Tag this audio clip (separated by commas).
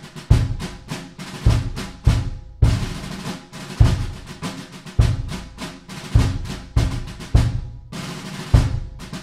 Music